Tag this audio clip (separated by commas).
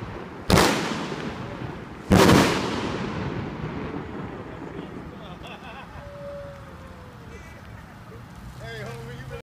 Speech